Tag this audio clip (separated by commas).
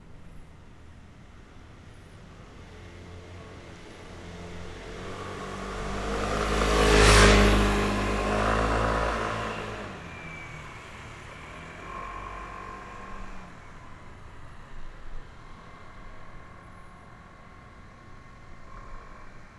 Engine